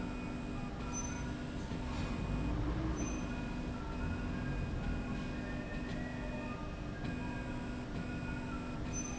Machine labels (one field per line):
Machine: slide rail